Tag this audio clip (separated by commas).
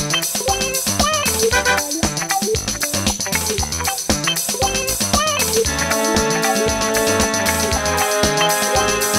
Music